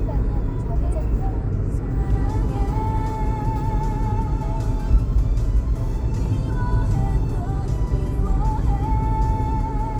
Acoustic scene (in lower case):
car